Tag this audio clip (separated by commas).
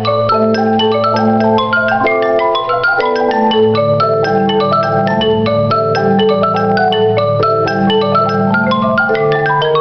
Mallet percussion, xylophone, Marimba, Glockenspiel